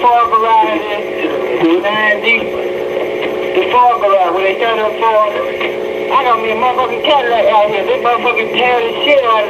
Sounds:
speech

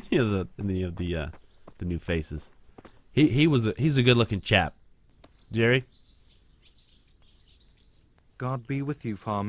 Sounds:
bird song, bird

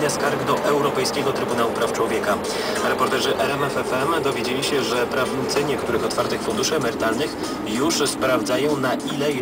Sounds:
speech

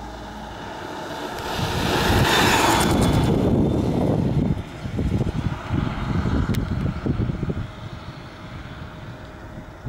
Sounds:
bicycle, outside, urban or man-made, vehicle

